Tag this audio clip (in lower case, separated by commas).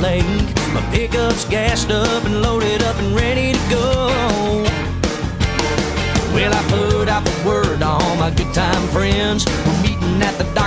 music